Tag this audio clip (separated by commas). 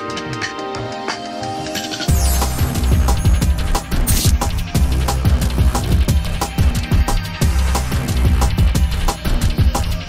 Spray, Music